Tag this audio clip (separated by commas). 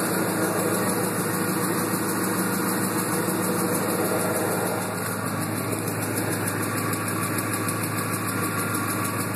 Car, Vehicle, Medium engine (mid frequency)